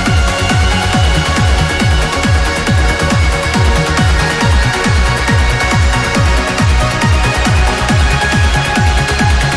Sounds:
Music, Electronica, Electronic music, Exciting music

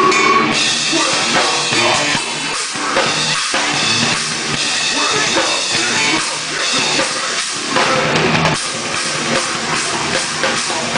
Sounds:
Musical instrument, Drum kit, Music, Cymbal, Drum, Rock music

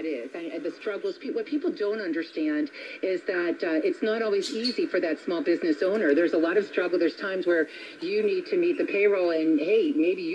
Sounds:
Speech, Radio

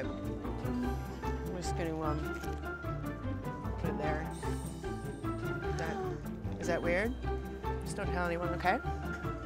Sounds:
Speech, Music

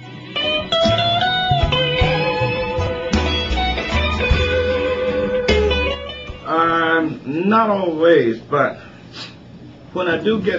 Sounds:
Guitar, Plucked string instrument, Speech, Music, Musical instrument

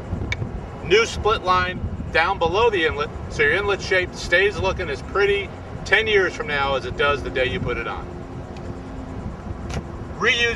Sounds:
Speech

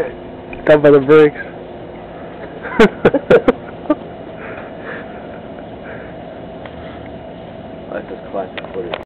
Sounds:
Speech

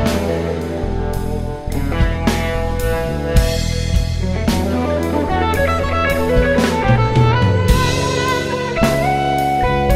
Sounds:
Music, inside a small room

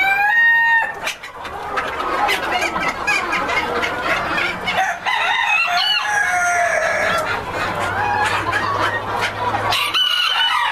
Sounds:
Cluck, Fowl, Crowing, Chicken

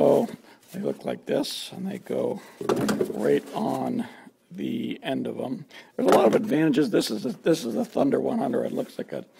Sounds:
Speech

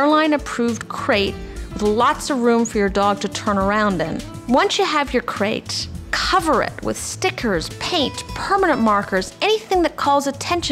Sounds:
Music, Speech

